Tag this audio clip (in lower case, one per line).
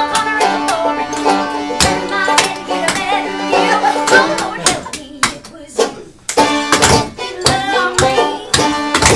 music